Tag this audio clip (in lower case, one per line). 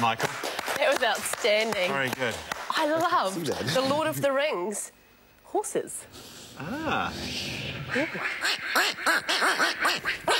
sound effect
speech